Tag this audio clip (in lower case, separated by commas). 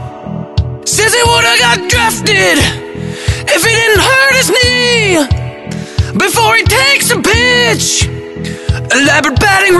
music, speech